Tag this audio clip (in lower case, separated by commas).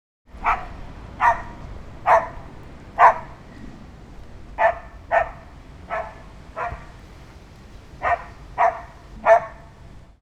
domestic animals, bark, animal, dog